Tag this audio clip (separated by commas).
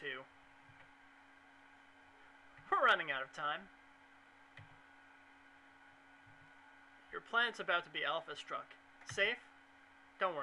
Speech